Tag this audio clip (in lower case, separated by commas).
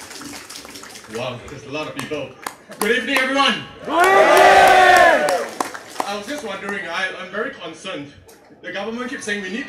speech, man speaking